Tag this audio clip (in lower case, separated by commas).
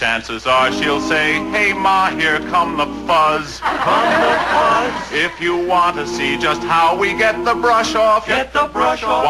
music